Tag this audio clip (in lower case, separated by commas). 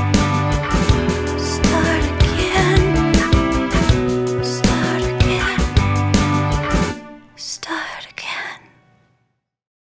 music